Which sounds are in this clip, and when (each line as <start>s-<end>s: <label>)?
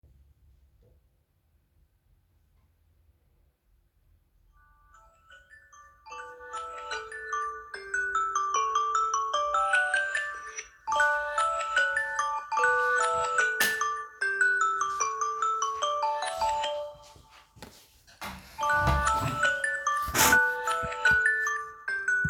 4.4s-17.1s: phone ringing
13.5s-13.8s: light switch
16.8s-19.6s: footsteps
18.4s-22.3s: phone ringing